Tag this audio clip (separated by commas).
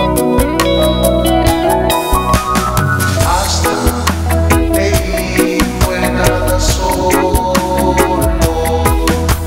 Music, Soundtrack music